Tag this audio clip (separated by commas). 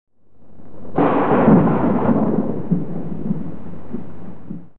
Thunder, Thunderstorm